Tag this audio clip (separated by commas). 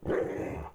Animal, pets, Dog, Growling